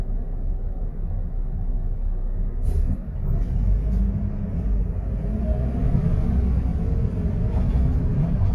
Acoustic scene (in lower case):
bus